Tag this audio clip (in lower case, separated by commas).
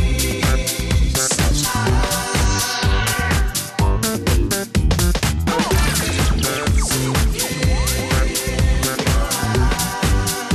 house music, music, electronic music, disco